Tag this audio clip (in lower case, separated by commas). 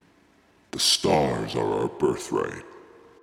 human voice, speech